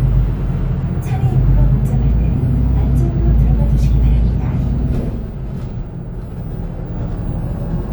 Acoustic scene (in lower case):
bus